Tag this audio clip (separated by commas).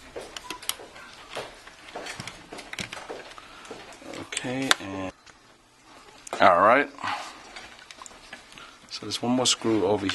Speech, inside a small room